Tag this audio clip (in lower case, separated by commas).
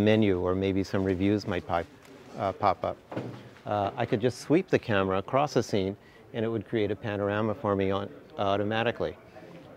speech